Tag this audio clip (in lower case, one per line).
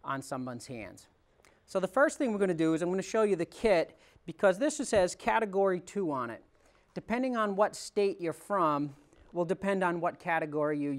speech